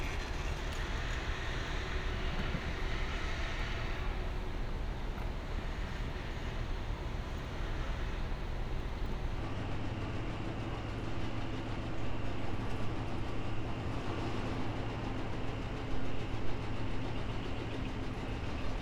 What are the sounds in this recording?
unidentified impact machinery